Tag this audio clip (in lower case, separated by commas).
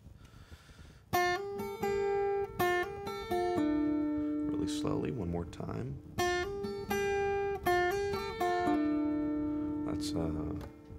music, speech